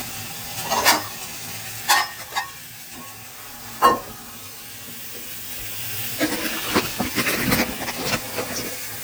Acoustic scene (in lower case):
kitchen